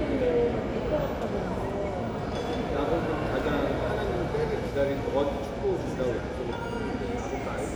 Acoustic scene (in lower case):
crowded indoor space